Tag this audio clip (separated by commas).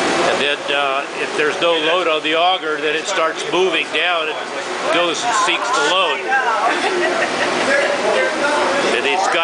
Speech